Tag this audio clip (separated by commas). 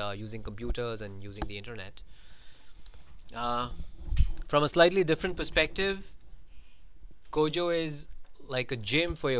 Speech